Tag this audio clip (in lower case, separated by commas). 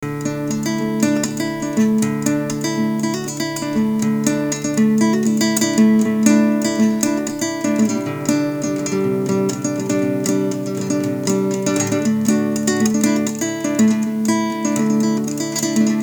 plucked string instrument, guitar, music, musical instrument